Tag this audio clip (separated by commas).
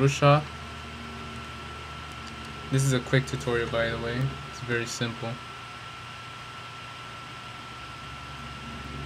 Speech